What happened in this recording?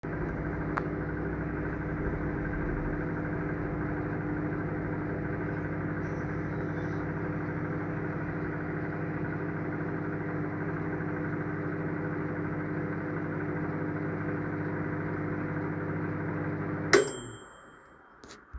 the timer ended sound of microwave.